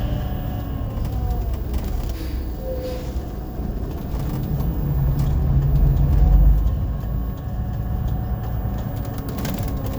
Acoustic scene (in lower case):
bus